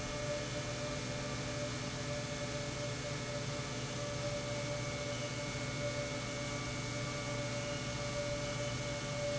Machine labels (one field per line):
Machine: pump